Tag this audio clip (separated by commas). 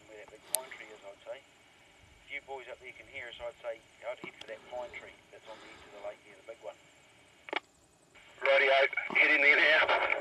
Speech